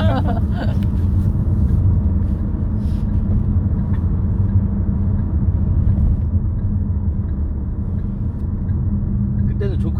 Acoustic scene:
car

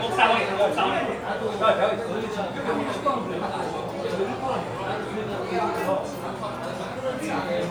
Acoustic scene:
crowded indoor space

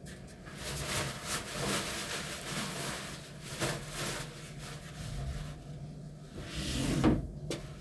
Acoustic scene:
elevator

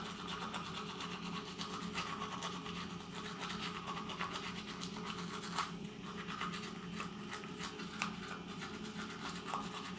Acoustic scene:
restroom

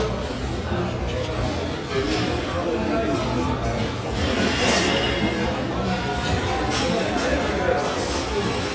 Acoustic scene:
restaurant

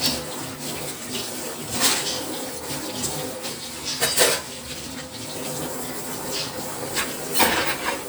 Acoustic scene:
kitchen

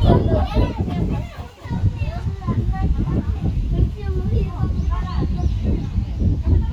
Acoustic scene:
residential area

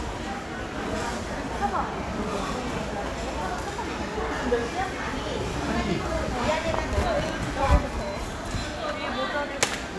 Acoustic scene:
crowded indoor space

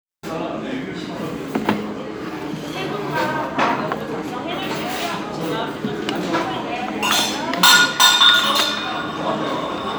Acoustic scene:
restaurant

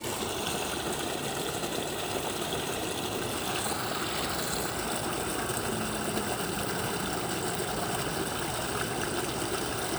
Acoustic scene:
park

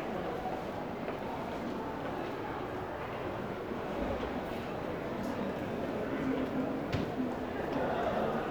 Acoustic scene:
crowded indoor space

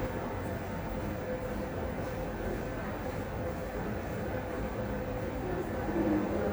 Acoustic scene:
subway station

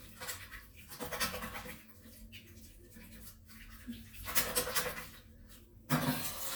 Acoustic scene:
restroom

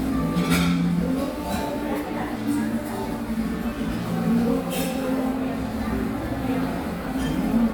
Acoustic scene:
cafe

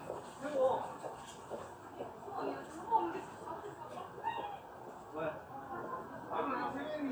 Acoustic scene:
residential area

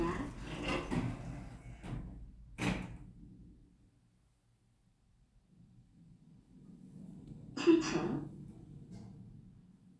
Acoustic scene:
elevator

